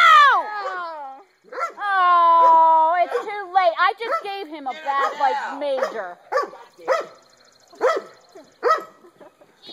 A woman is yelling and other people are speaking as a dog barks